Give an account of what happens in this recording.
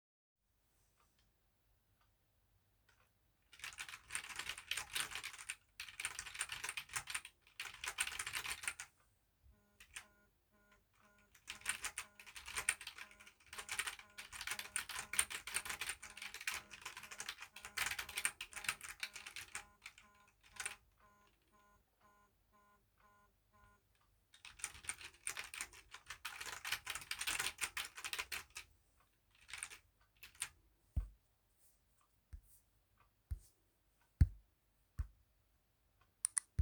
Typing on a keyboard while a phone notification sound occurs.